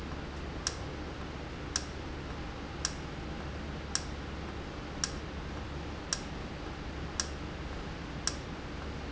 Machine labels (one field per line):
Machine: valve